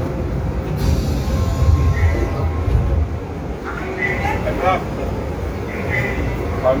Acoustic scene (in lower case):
subway train